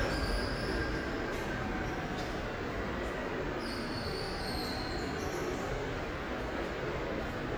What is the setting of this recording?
subway station